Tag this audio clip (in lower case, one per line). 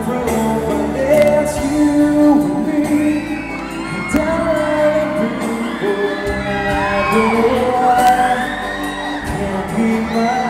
male singing
music